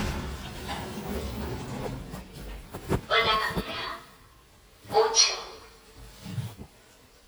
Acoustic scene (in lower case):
elevator